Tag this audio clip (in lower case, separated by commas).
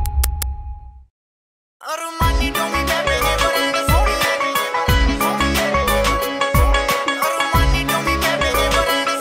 singing, music